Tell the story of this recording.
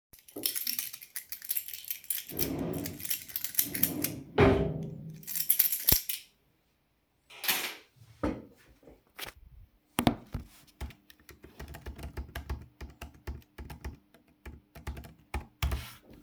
I start by picking up my keychain from the dresser, causing it to jingle, while picking them up I open a wardrobe drawer to grab a notebook afterwhich I begin typing on the keyboard while holding the device.